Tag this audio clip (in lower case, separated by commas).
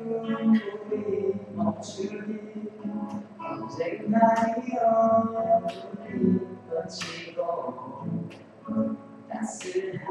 music, male singing